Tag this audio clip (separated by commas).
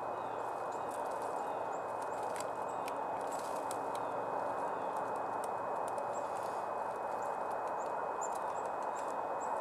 Bird, Animal